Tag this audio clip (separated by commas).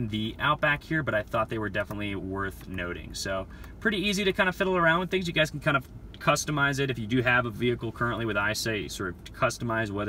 reversing beeps